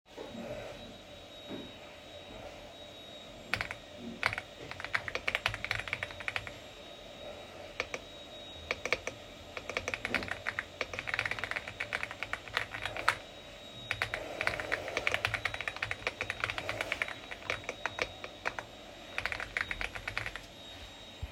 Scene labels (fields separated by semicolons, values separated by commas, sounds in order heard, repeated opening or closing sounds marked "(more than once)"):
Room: bedroom; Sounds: vacuum cleaner, keyboard typing